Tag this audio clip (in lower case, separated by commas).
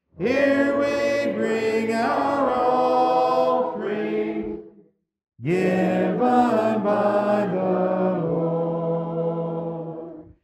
music